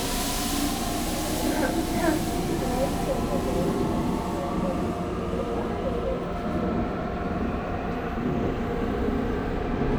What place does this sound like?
subway train